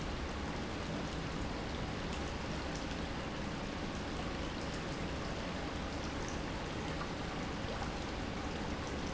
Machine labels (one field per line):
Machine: pump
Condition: normal